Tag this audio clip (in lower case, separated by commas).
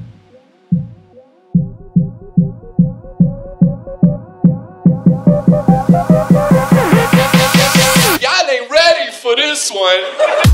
music, dubstep, electronic music